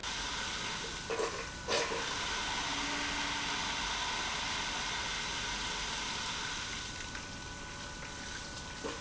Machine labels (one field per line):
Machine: pump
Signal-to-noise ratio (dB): 6 dB